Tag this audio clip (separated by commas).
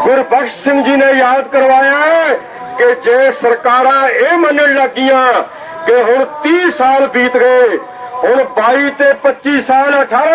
Speech, Male speech